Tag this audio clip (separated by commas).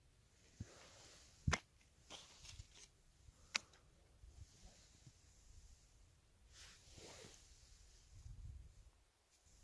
lighting firecrackers